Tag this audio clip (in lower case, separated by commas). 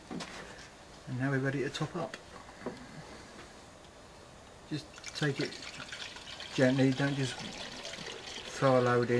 speech, liquid